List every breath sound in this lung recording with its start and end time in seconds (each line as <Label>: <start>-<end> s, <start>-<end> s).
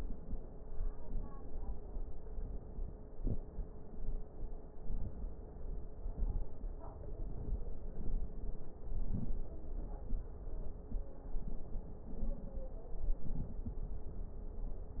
Inhalation: 3.06-3.44 s, 4.75-5.30 s, 8.87-9.42 s